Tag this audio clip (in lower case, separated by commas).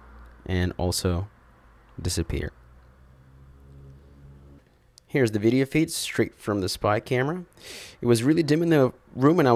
speech